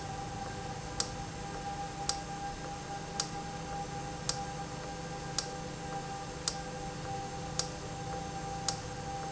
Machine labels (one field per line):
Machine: valve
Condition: normal